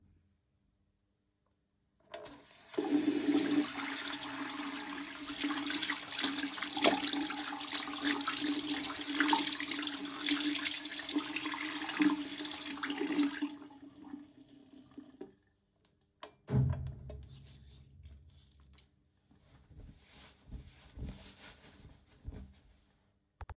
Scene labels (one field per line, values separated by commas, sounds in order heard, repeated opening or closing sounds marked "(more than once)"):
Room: bathroom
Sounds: running water